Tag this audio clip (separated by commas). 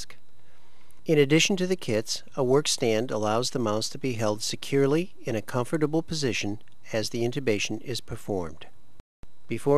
Speech